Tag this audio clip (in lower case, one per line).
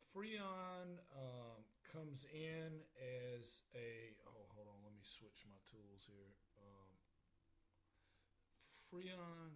speech